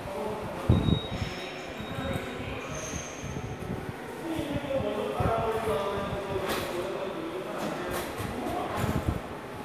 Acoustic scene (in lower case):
subway station